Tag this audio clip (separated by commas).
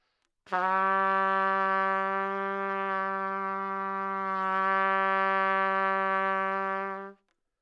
Music, Musical instrument, Brass instrument, Trumpet